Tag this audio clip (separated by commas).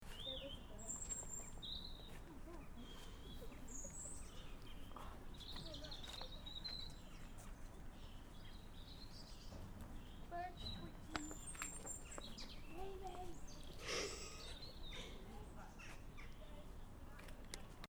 Wild animals, bird song, Bird, Animal